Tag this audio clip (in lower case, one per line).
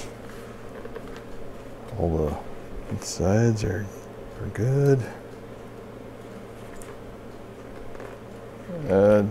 speech